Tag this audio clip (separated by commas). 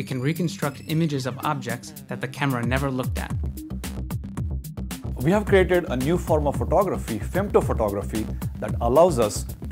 Music, Speech